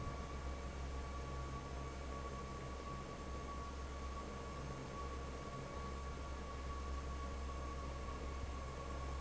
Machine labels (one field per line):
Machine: fan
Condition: normal